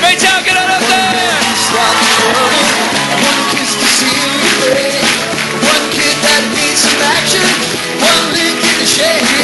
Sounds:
male singing, speech, music

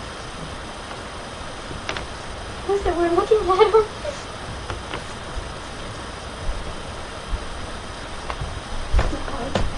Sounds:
speech

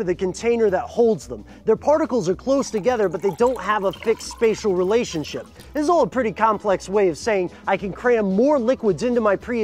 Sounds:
music, speech

